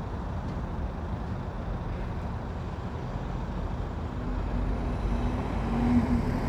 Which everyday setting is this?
street